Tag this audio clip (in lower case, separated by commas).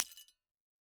shatter, glass